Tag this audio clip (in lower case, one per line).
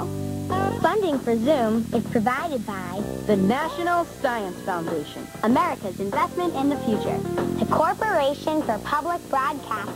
speech
music